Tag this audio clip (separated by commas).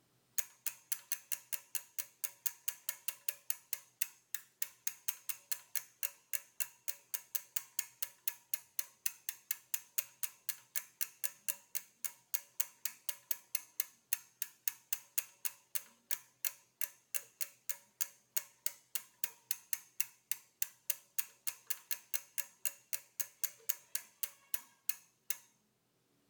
Mechanisms, Bicycle, Vehicle